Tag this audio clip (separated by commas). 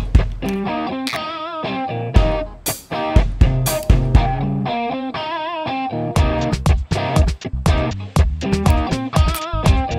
Music